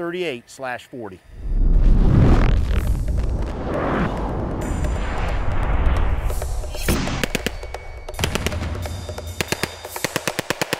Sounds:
machine gun shooting

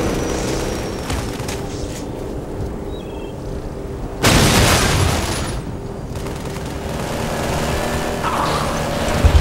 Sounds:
roll

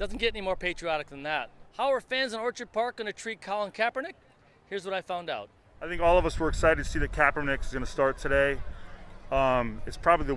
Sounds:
people booing

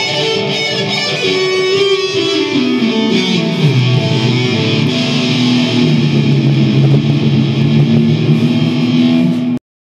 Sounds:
musical instrument
strum
guitar
electric guitar
music
plucked string instrument

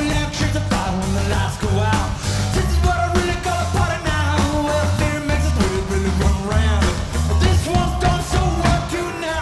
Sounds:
music

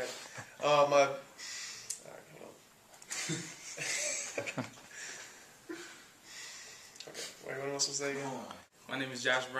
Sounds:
speech
male speech

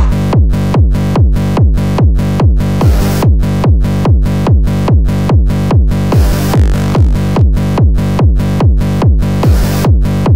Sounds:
music

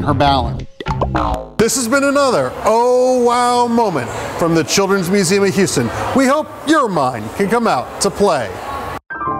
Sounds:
speech
music
inside a public space

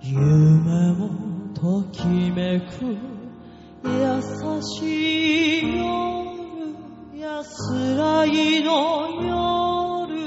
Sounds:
music

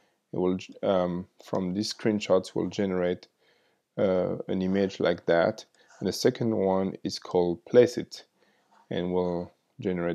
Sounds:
speech

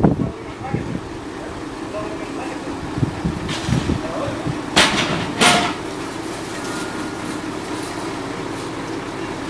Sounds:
speech

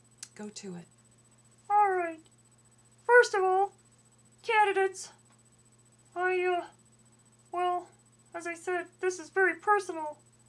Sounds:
speech

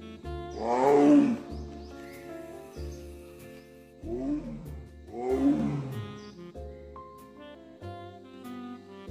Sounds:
lions roaring

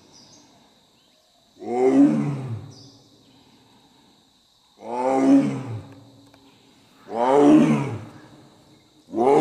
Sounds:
lions roaring

